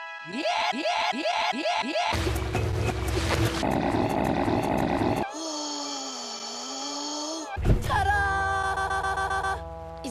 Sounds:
Speech, Music

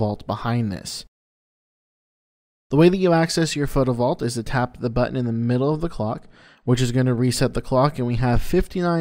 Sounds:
Speech

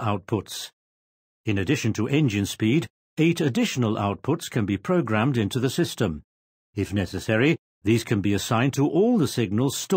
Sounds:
Speech

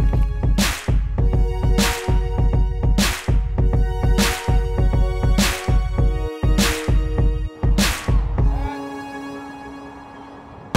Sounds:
outside, urban or man-made, Music, Speech

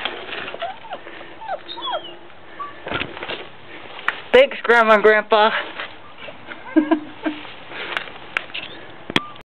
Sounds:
Dog, pets, Speech, Animal, outside, urban or man-made

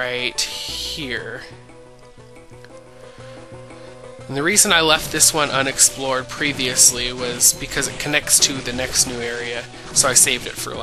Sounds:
Speech, Music

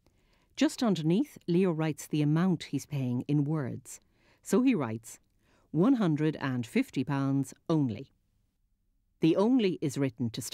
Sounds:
Speech

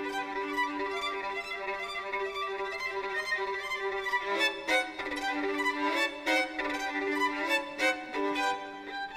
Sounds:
Music

